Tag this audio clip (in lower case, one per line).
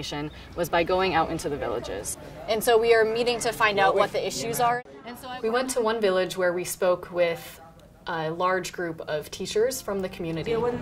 speech